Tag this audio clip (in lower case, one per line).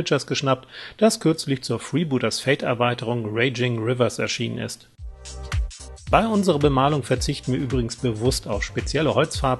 speech
music